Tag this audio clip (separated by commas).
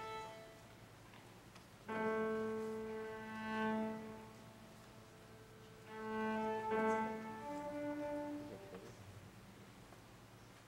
Music, Cello, Violin, Musical instrument